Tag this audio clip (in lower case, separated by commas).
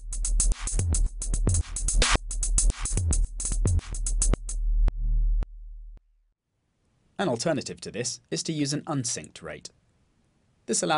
synthesizer, music, electronic tuner, effects unit, musical instrument, speech, drum machine